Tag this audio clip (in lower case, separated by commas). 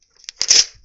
tearing